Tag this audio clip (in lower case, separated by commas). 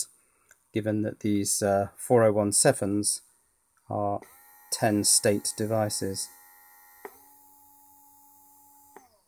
inside a small room, speech